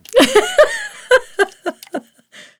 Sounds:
Laughter, Human voice, Giggle

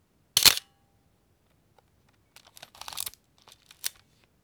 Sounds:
Camera, Mechanisms

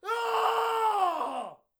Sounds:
Shout, Human voice, Screaming

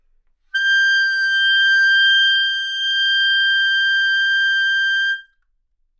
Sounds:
Musical instrument, woodwind instrument, Music

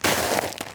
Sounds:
Walk

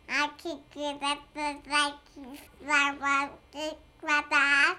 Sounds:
Human voice, Speech

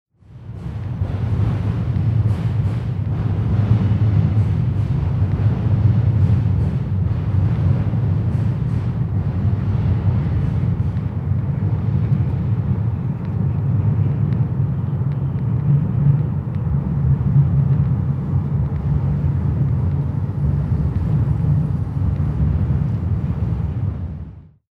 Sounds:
Rail transport, Train, Vehicle

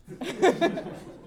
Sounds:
Laughter, Human voice

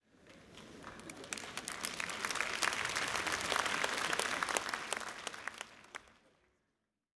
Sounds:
Human group actions, Applause

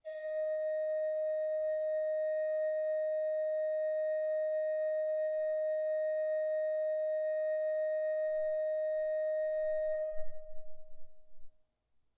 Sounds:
Organ, Music, Musical instrument, Keyboard (musical)

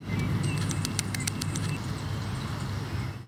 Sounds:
Bird, Wild animals, Animal

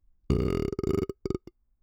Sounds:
eructation

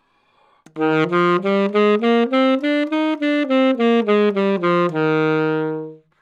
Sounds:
Music, woodwind instrument, Musical instrument

